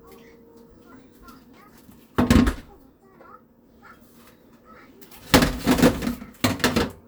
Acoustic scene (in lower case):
kitchen